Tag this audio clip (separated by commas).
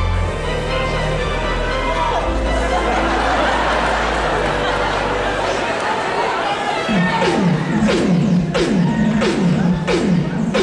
Music